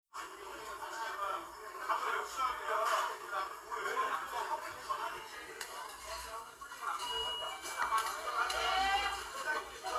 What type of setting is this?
crowded indoor space